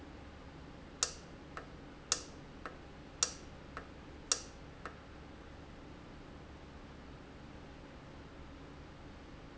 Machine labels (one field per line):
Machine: valve